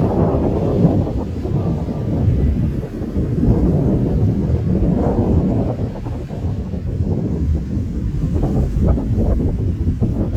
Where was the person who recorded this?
in a park